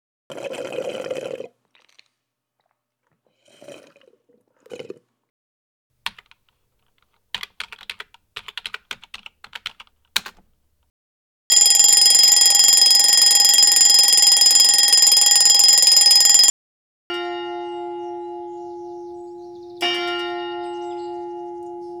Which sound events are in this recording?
coffee machine, keyboard typing, phone ringing, bell ringing